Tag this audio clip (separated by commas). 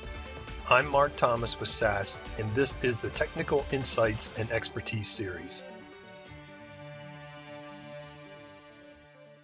Music, Speech